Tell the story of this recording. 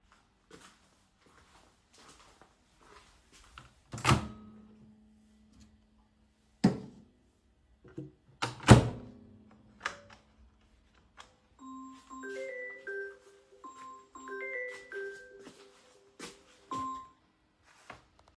in kitchen , I was heating up my food in microwave but suddenly I got a call